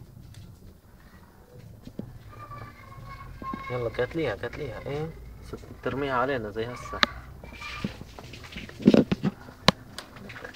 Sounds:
Speech

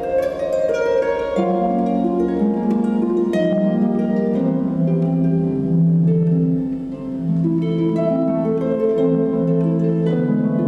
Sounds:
Pizzicato, Harp

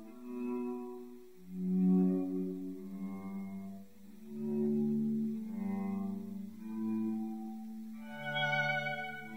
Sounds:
Music

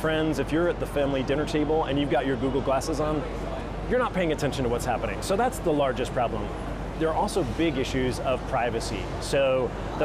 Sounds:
Speech

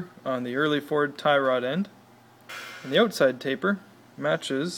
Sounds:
Speech

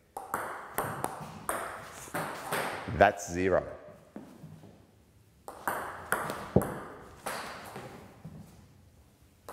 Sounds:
playing table tennis

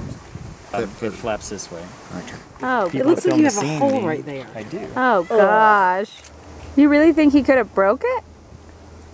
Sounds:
outside, rural or natural, Speech

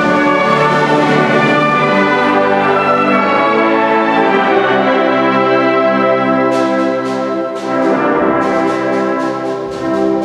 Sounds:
Music

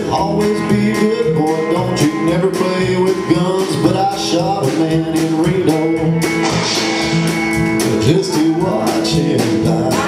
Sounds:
Music, Speech

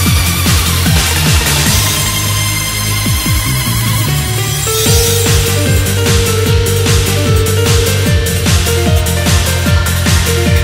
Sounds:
Music

